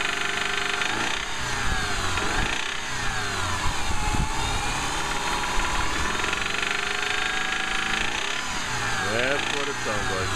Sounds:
Speech

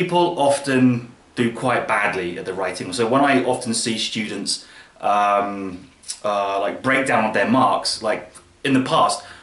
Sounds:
Speech

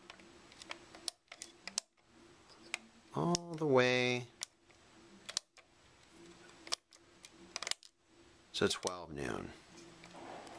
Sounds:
Speech

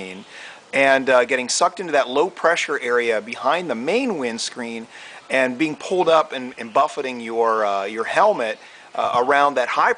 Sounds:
Speech

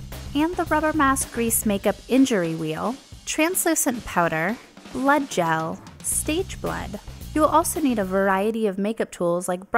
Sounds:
Music, Speech

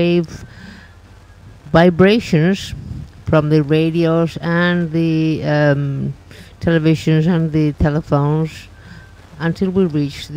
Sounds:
Speech

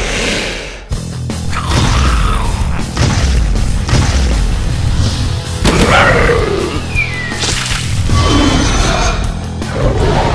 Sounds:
dinosaurs bellowing

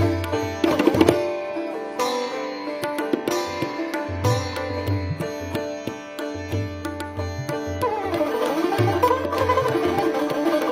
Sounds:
playing sitar

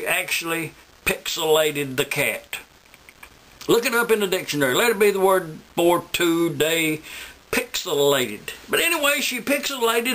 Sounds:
Speech

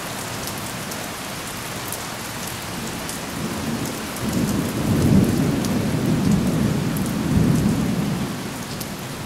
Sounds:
Thunderstorm, Rain on surface, Thunder, Rain

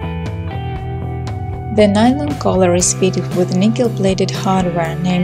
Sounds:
Music, Speech

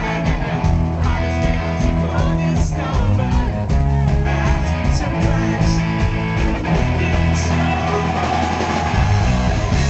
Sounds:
Music

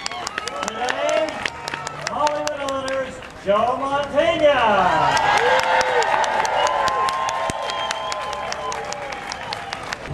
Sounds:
Narration, Speech, man speaking

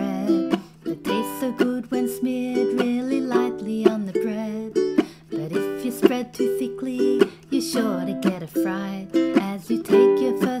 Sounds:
Ukulele, Music, inside a small room

